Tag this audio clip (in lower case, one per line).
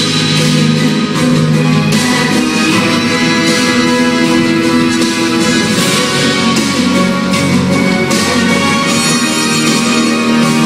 music